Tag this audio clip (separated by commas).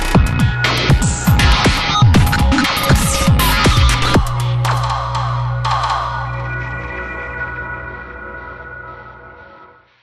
Music